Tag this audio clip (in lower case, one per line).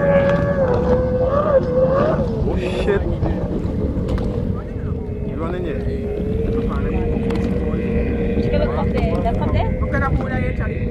speech